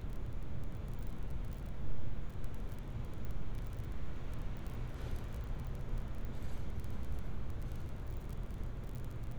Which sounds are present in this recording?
background noise